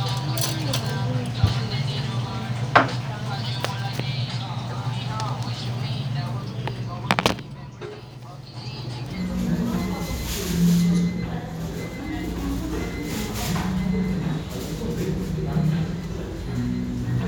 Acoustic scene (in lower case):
restaurant